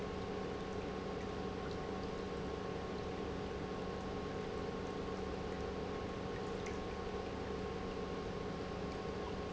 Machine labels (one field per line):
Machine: pump